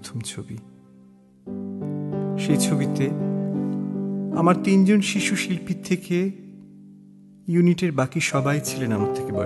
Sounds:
electric piano

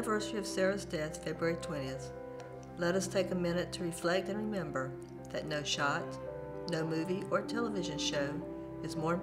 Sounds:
speech, music

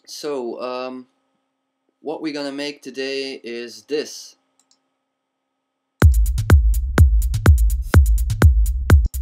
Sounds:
techno, speech, music, electronic music

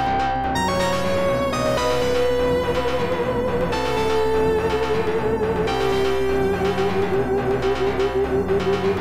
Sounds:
music

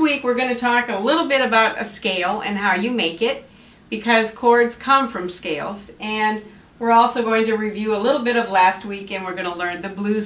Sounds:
speech

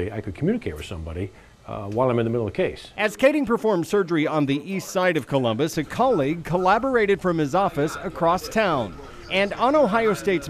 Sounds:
speech

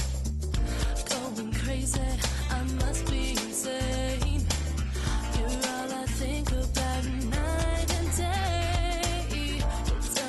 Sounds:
music

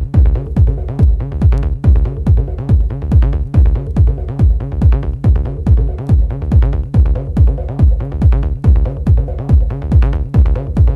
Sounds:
techno, music

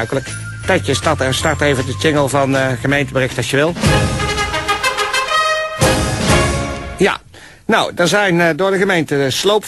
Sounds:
speech, music

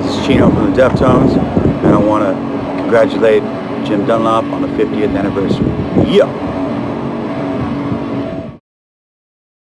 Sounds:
speech

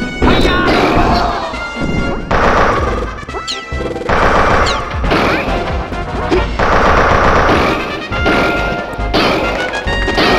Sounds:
speech, music, crash

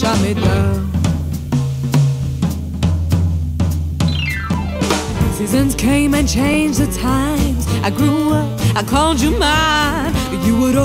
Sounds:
music

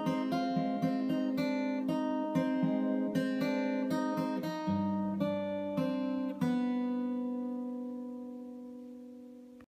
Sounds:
guitar, strum, plucked string instrument, music, musical instrument

